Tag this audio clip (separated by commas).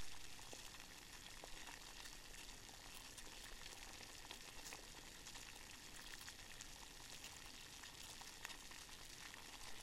Boiling, Liquid